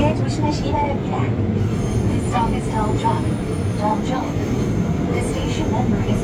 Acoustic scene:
subway train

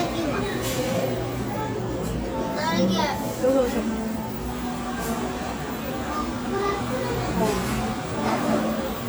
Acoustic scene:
cafe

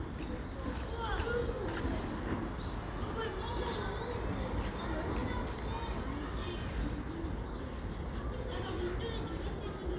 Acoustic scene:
residential area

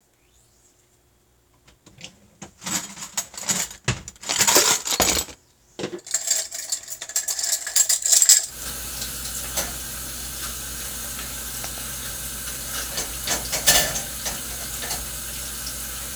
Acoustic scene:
kitchen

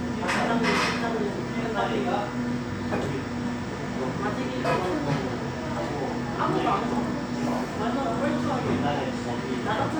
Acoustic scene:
cafe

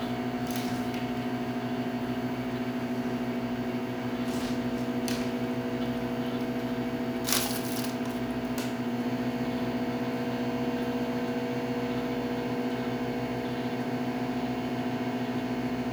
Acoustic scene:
kitchen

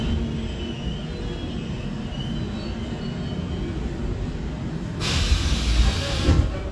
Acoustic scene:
subway train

